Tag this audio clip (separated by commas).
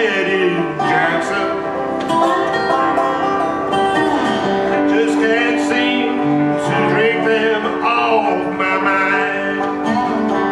Country, Music